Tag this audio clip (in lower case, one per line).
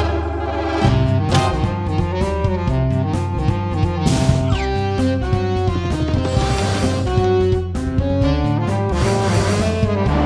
music